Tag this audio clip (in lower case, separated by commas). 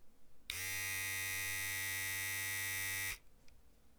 home sounds